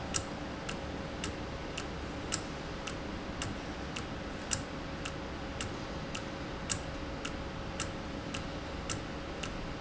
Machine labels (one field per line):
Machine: valve